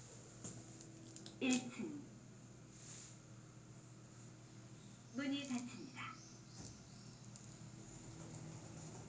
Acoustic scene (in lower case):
elevator